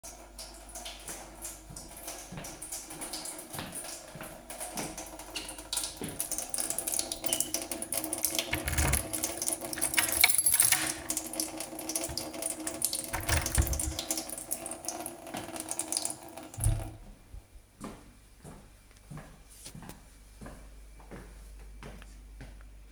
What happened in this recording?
Water was running in the kitchen. Footsteps approached the door, then a key was inserted into the lock and it was turned, after that, the sound of running water stopped.